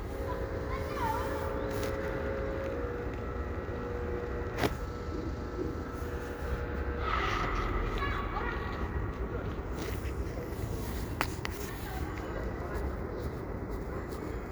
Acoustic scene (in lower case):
residential area